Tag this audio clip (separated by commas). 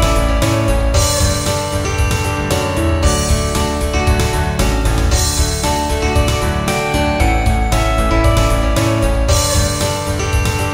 Music